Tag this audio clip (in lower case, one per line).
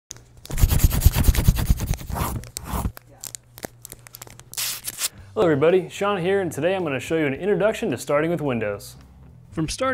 inside a small room
speech